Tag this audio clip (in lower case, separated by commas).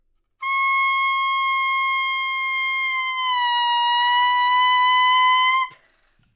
music, musical instrument, wind instrument